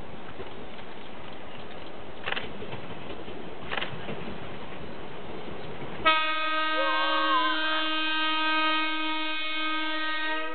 A train honks its horn as a child screams